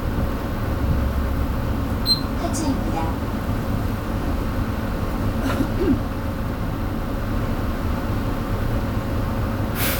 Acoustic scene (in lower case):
bus